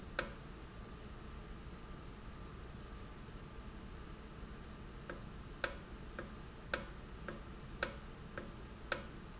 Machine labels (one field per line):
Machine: valve